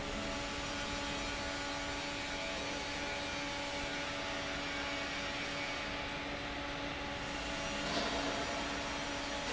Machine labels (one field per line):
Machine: fan